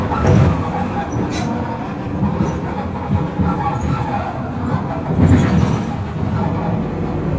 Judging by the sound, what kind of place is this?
bus